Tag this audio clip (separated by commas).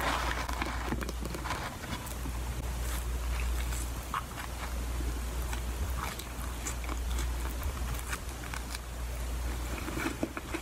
people eating apple